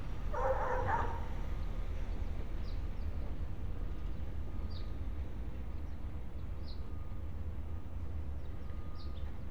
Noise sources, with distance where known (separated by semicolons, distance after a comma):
dog barking or whining